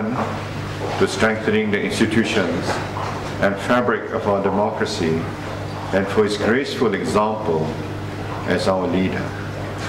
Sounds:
speech
man speaking
narration

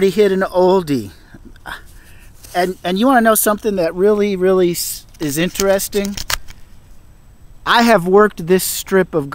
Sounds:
speech

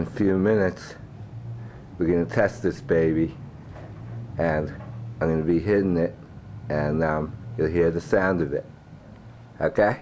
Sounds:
speech

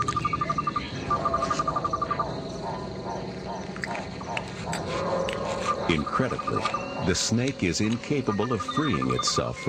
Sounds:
speech

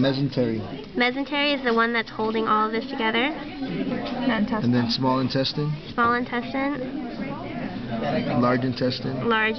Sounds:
speech

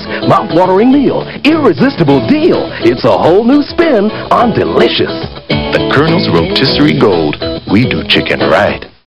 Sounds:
speech
music

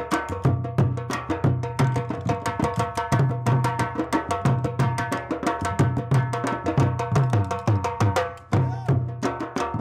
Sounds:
drum
didgeridoo
musical instrument
timpani
music

